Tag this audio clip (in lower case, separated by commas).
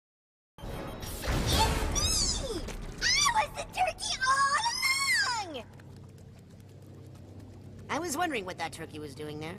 music, speech